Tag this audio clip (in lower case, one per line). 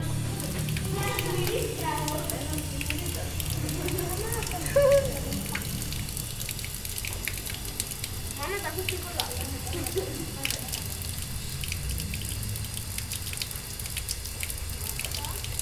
home sounds
faucet